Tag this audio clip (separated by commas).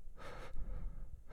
Respiratory sounds, Breathing